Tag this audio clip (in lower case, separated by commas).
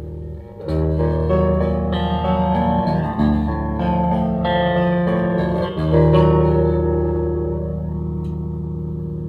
piano, music